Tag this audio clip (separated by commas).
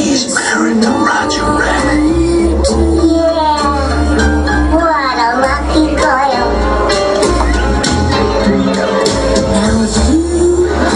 Music, Speech